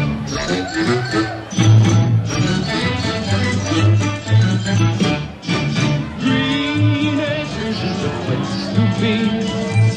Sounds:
Singing, Music of Latin America, Music

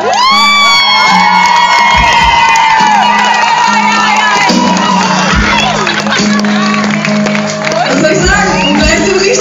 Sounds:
Music, Speech

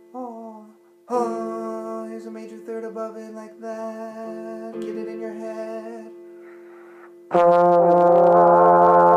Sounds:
playing trombone

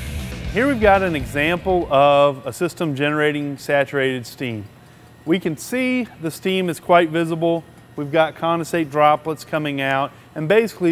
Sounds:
Music, Speech

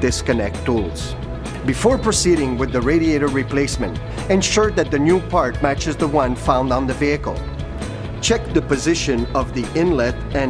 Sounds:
Speech, Music

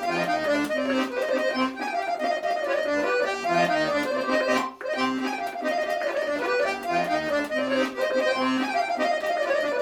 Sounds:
Music

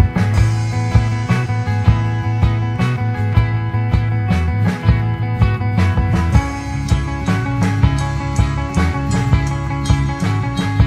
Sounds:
Music

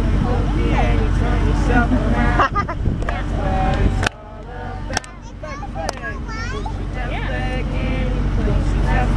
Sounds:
Male singing, Speech

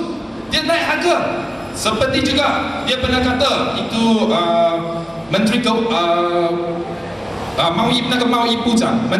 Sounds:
Speech

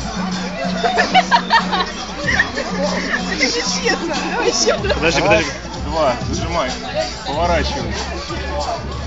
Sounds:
Speech, Music

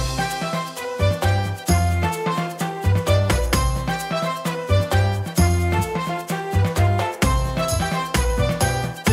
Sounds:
Music

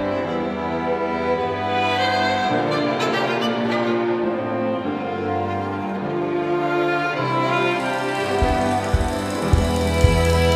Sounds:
Orchestra, Music

